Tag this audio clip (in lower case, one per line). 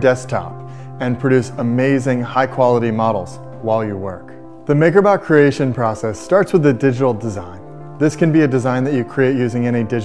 speech
music